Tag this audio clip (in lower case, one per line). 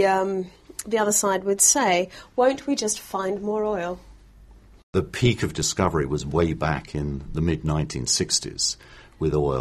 speech